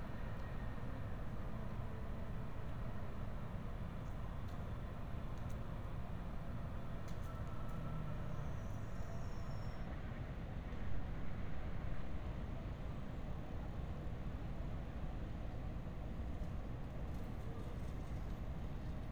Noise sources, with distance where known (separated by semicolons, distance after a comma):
engine of unclear size